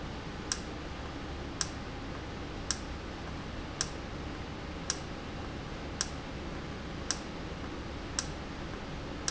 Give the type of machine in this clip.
valve